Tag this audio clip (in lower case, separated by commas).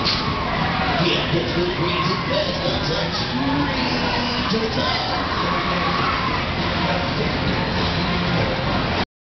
music, speech